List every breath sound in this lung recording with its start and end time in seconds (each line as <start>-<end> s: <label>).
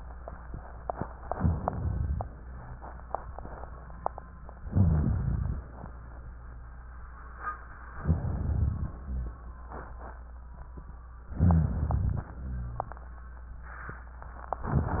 1.31-2.26 s: inhalation
1.31-2.26 s: crackles
2.31-2.85 s: rhonchi
4.69-5.64 s: inhalation
4.69-5.64 s: crackles
8.03-8.98 s: inhalation
8.03-8.98 s: crackles
8.99-9.53 s: rhonchi
11.38-12.33 s: inhalation
11.38-12.33 s: crackles
12.35-13.04 s: rhonchi